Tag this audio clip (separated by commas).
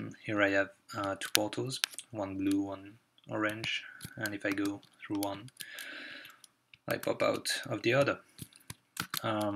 Speech